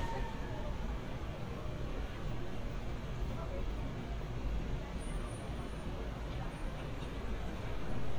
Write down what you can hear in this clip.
unidentified human voice